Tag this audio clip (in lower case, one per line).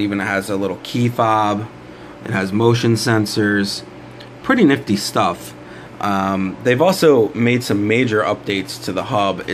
speech